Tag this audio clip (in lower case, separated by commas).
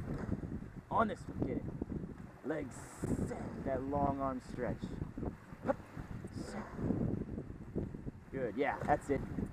kayak, speech, water vehicle, vehicle